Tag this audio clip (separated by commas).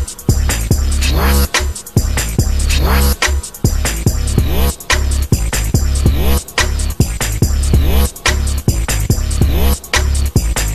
Music